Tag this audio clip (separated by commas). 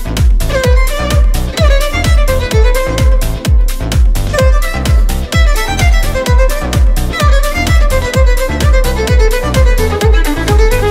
Dance music, Music